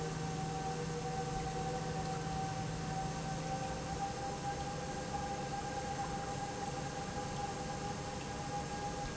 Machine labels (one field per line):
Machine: pump